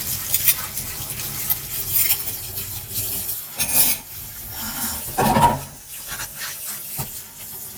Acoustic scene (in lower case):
kitchen